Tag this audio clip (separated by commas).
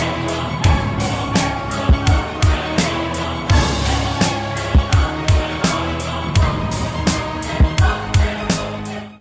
Music